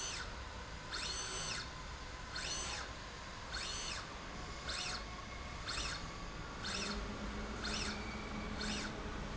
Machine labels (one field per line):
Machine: slide rail